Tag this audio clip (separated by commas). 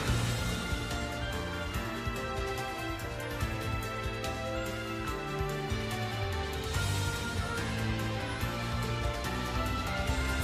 Music